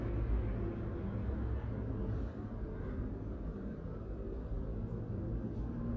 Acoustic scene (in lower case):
residential area